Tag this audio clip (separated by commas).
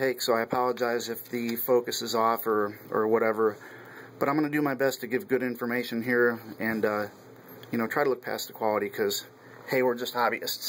Speech